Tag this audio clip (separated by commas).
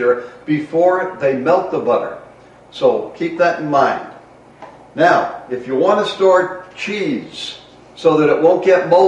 inside a large room or hall, Speech